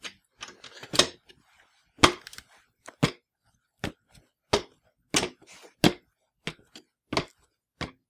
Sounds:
walk

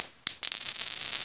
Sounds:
domestic sounds
coin (dropping)

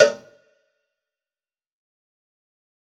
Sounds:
cowbell
bell

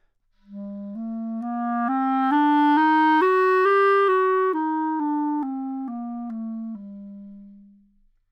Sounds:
musical instrument
music
woodwind instrument

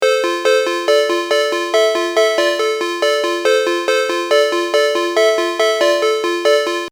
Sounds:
ringtone
telephone
alarm

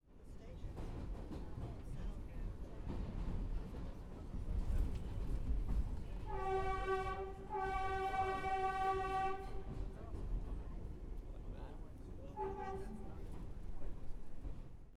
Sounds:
vehicle
rail transport
subway
train

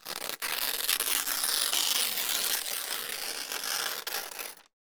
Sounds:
tearing

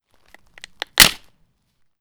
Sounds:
crack

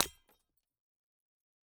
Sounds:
glass
shatter

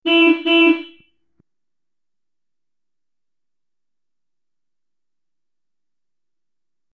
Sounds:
vehicle
car
motor vehicle (road)
honking
alarm

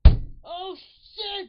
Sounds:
human voice
shout
yell

